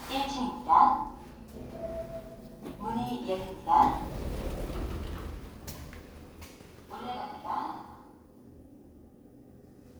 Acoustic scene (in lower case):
elevator